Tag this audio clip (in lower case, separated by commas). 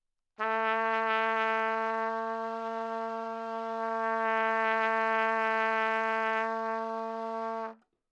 brass instrument, trumpet, music, musical instrument